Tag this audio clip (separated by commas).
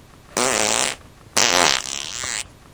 Fart